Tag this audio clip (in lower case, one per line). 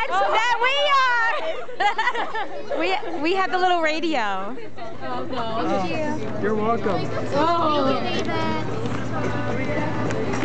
speech
music